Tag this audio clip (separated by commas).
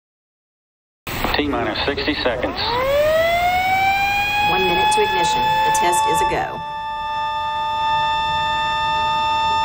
Speech, Siren